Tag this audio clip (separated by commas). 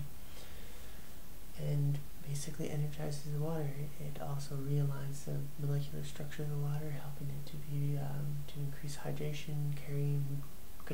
Speech